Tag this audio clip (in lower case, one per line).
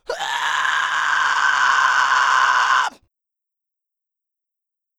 human voice